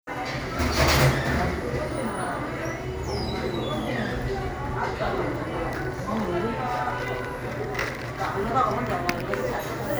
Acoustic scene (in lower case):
cafe